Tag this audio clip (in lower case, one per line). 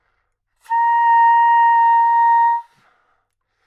woodwind instrument
music
musical instrument